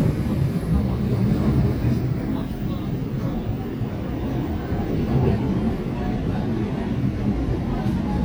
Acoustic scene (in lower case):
subway train